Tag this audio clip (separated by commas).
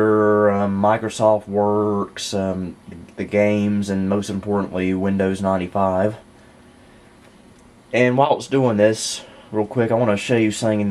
Speech